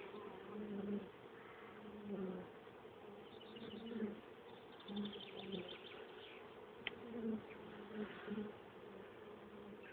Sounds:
Animal, Insect

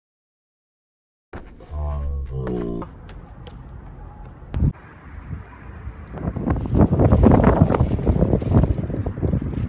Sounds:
Run

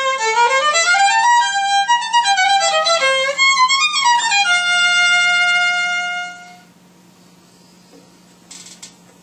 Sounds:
Violin, Music, Musical instrument

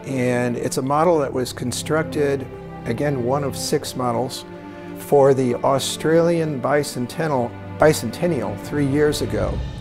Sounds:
Speech, Music

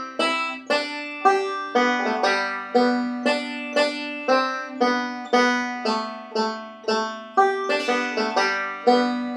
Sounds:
Music

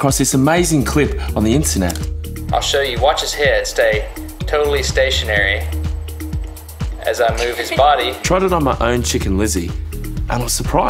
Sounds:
Speech, Music

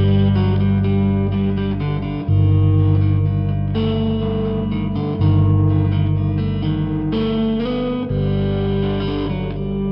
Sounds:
Distortion, Music, Electric guitar, Musical instrument, Plucked string instrument, playing electric guitar, Guitar

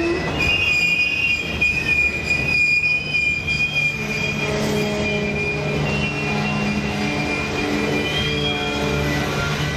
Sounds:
Rail transport, Train wheels squealing, train wagon, Train

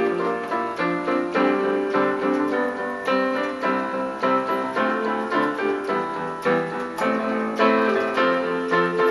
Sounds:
Music

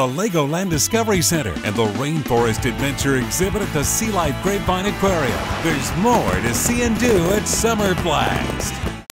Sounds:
Music, Speech

